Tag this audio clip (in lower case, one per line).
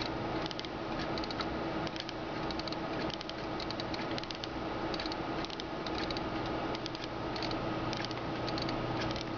tick-tock